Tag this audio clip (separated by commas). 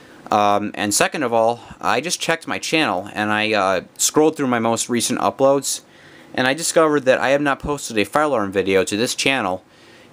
Speech